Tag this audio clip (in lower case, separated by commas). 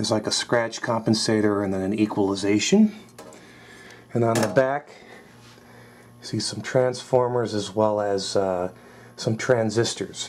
inside a small room, speech